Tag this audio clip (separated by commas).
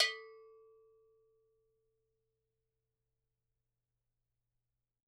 Bell